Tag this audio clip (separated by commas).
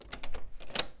Domestic sounds, Door